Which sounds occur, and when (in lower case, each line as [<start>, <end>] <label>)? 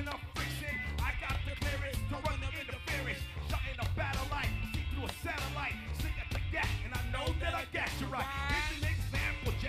[0.00, 0.17] male singing
[0.00, 9.65] music
[0.35, 3.19] male singing
[3.43, 4.53] male singing
[4.75, 5.84] male singing
[5.97, 9.65] male singing